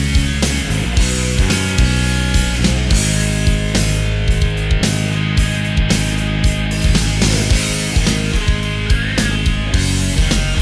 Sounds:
Music

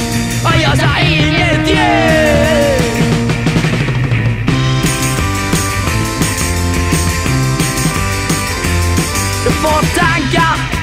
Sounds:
Music

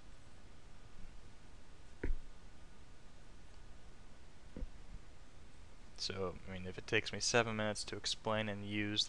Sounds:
Speech

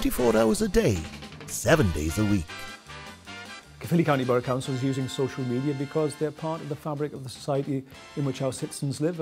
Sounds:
Music, Speech

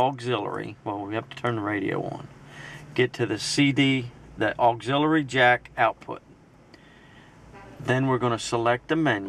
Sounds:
Speech

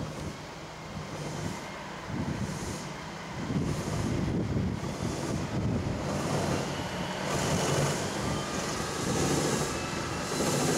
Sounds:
Vehicle, Truck

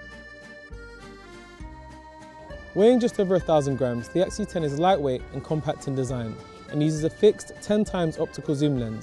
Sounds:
Speech, Music

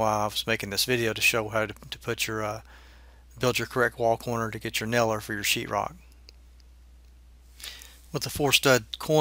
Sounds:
Speech

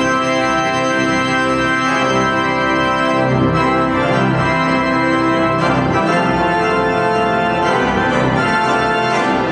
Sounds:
playing electronic organ

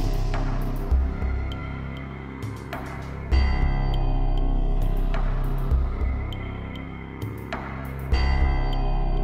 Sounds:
Background music, Music

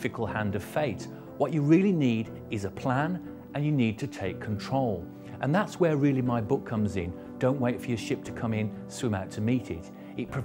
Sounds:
Speech, Music

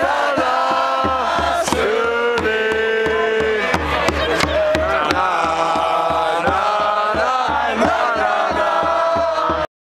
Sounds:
Music

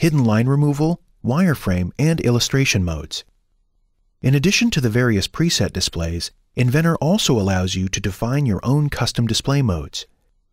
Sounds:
Speech

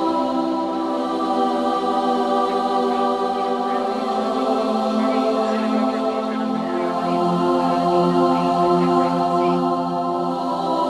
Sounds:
Music, Speech, Choir

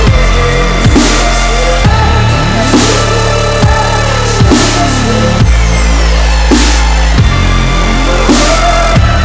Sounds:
Music

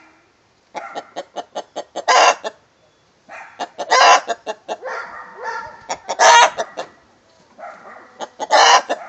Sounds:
Chicken, Animal

